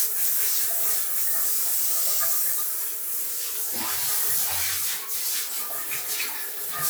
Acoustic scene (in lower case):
restroom